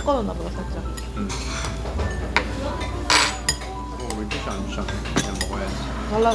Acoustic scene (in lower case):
restaurant